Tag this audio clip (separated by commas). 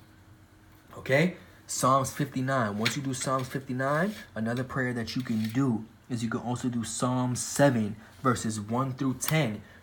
reversing beeps